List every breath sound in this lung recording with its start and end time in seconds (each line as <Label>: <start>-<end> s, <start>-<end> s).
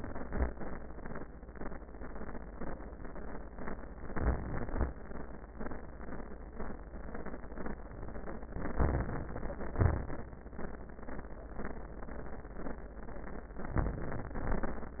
Inhalation: 4.10-4.87 s, 8.55-9.32 s, 13.63-14.37 s
Exhalation: 9.75-10.32 s, 14.39-15.00 s